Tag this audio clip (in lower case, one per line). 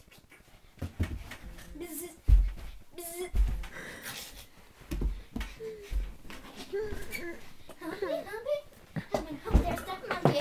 speech